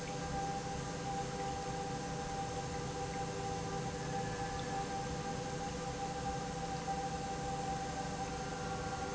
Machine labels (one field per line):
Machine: pump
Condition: normal